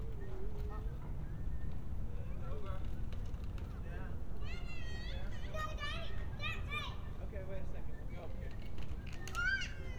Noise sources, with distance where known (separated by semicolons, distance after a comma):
person or small group talking; person or small group shouting, far